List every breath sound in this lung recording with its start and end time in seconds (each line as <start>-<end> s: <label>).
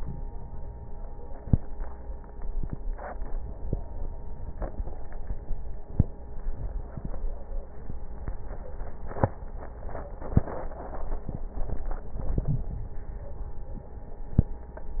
12.14-12.74 s: inhalation